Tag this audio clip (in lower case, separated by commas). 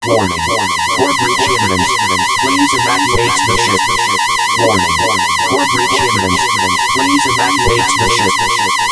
alarm